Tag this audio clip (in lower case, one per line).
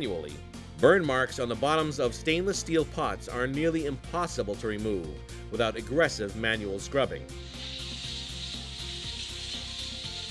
speech
music